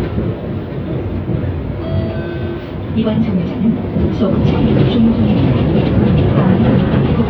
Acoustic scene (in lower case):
bus